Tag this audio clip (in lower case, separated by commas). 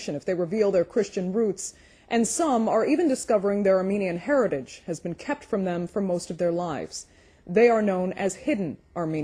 speech